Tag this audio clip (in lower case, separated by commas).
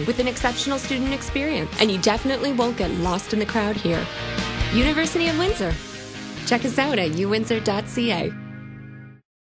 music, speech